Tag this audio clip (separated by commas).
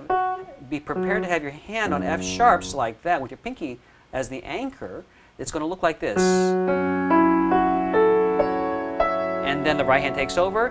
Keyboard (musical), Piano, Musical instrument, Music, Speech